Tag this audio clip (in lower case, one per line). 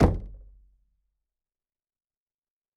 door
knock
home sounds